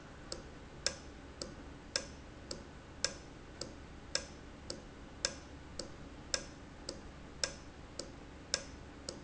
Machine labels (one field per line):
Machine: valve